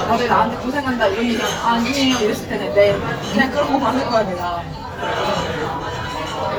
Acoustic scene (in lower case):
crowded indoor space